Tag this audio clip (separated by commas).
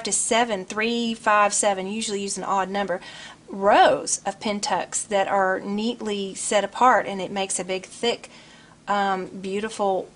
Speech